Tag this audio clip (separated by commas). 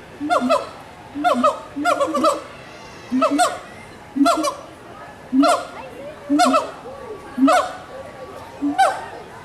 gibbon howling